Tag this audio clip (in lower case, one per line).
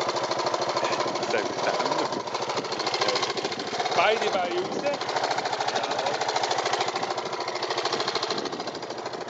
speech
vehicle